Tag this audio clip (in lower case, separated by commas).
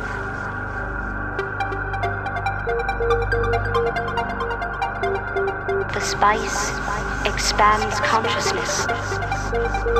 music, speech